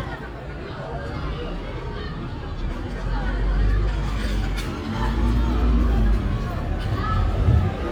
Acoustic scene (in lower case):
residential area